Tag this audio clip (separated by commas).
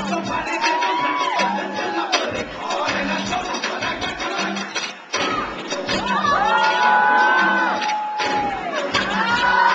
Music, Singing